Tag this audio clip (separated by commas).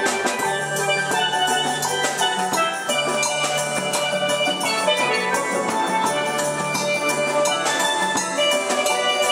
Musical instrument, Percussion, Music, Steelpan, Drum, Drum kit